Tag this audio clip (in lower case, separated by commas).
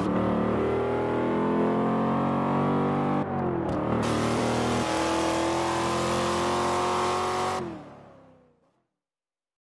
car passing by